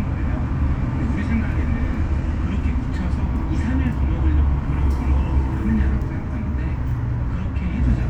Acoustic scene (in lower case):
bus